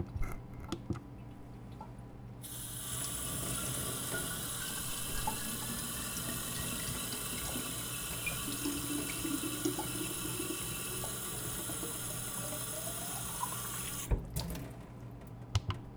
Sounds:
Sink (filling or washing), Trickle, Drip, Liquid, Domestic sounds, Pour, Fill (with liquid), Water tap

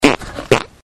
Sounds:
Fart

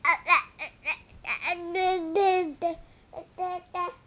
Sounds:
Human voice, Speech

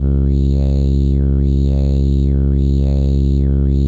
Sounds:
Human voice

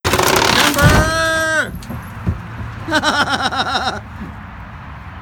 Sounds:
Human voice, Laughter

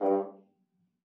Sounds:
Brass instrument, Musical instrument, Music

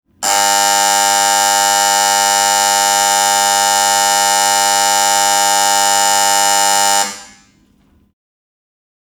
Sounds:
Alarm

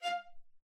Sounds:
Music, Musical instrument, Bowed string instrument

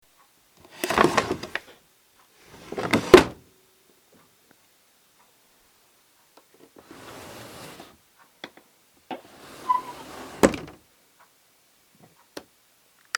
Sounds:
Domestic sounds, Drawer open or close

